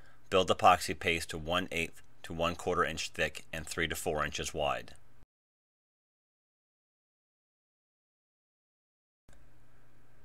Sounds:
speech

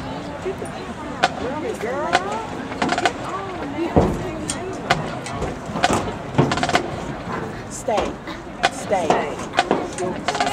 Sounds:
speech

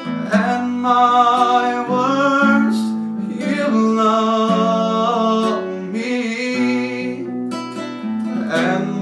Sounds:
male singing, music

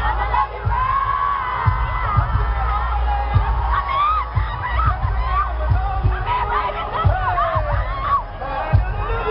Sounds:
outside, urban or man-made, speech, music

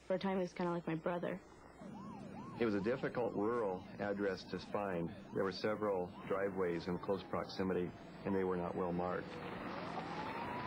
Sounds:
speech

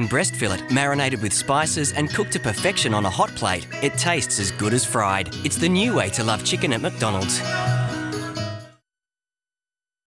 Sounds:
speech, music

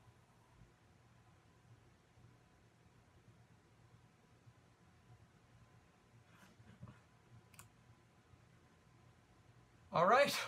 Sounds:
speech, silence

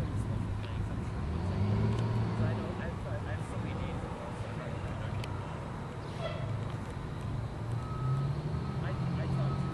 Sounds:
heavy engine (low frequency), engine, speech, vehicle, accelerating

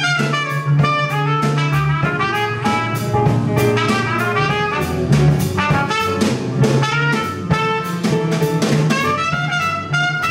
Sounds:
trumpet, playing trumpet, music, musical instrument

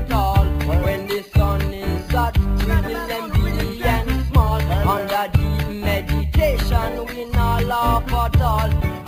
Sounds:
music

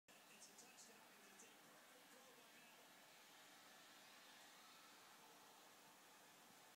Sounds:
speech

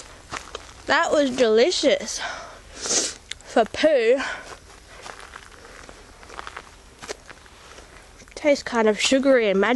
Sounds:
walk, speech

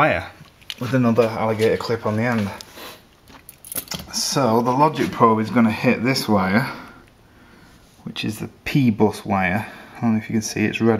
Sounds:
speech

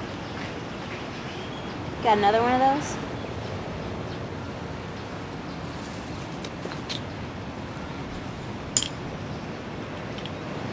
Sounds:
speech

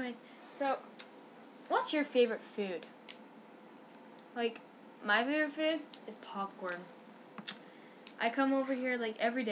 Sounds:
speech

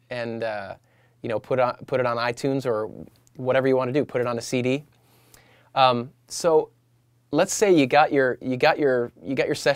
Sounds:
speech

